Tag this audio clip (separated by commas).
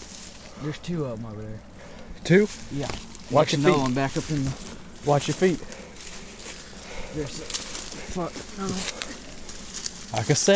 Speech